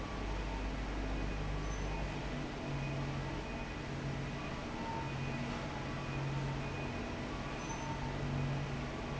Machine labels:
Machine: fan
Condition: normal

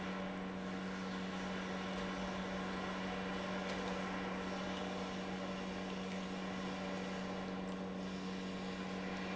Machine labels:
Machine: pump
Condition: normal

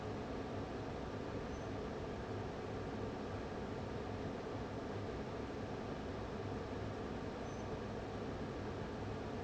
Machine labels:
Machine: fan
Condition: abnormal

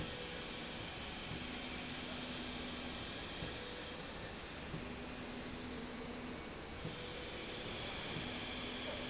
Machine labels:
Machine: slide rail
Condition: normal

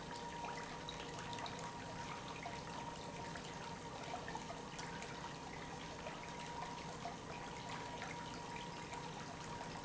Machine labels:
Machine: pump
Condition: normal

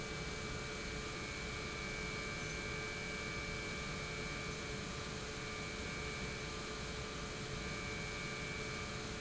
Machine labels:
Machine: pump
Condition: normal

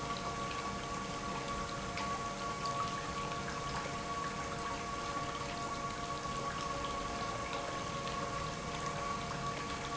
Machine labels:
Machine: pump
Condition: normal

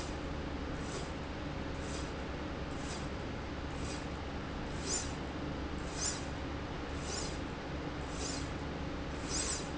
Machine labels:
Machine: slide rail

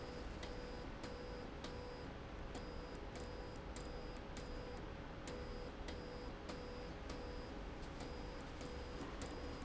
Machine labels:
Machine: slide rail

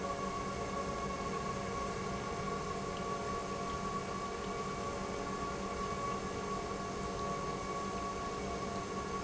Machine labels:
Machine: pump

